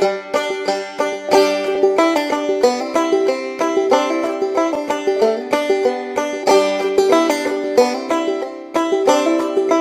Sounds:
Music

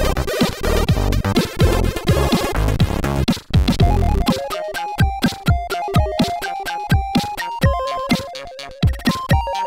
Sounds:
Video game music, Music

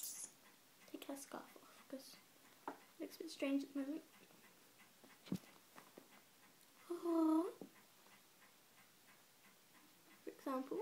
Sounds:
Speech, woman speaking

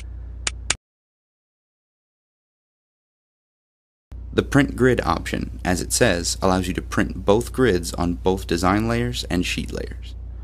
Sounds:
Speech

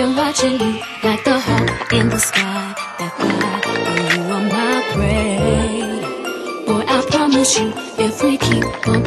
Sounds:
Clatter, Music

